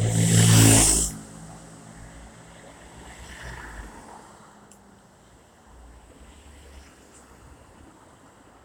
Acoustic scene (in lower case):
street